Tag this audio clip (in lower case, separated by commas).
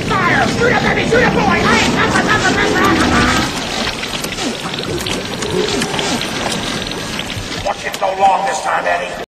speech